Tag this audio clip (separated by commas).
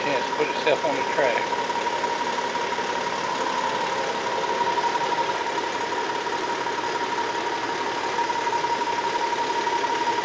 Speech